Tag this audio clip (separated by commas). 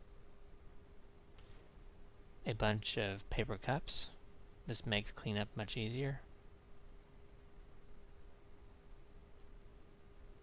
Speech